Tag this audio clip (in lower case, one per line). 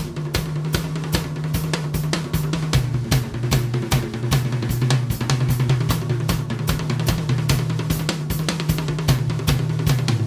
drum roll
bass drum
snare drum
drum kit
percussion
drum